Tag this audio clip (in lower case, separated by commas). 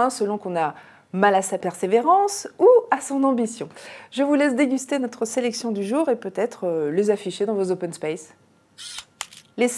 speech